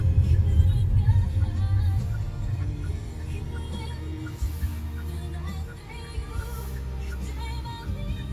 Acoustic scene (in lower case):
car